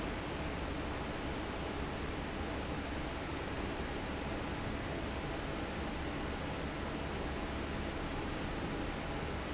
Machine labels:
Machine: fan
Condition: normal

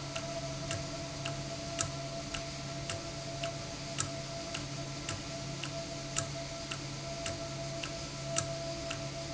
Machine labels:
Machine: valve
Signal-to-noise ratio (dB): -6 dB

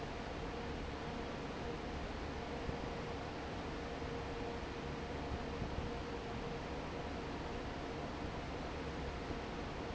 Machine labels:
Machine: fan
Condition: normal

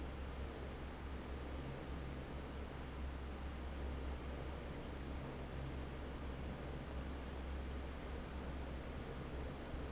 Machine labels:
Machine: fan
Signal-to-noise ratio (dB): 6 dB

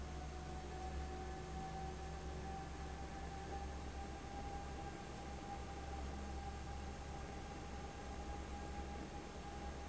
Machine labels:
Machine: fan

